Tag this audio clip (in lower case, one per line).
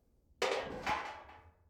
dishes, pots and pans
home sounds